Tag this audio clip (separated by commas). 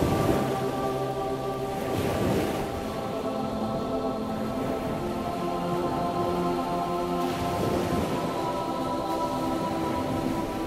Music